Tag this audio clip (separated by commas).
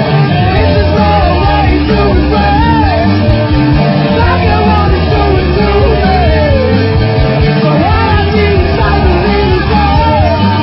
Music, Rock and roll